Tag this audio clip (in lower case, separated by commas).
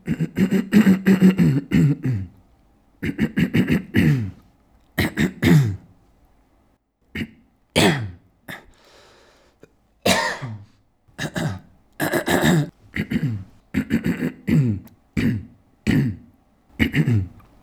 cough, respiratory sounds